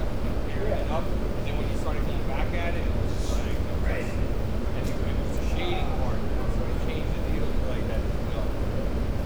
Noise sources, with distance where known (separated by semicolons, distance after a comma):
person or small group talking, near